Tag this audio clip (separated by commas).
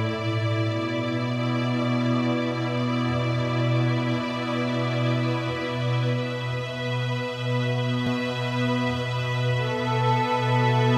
Music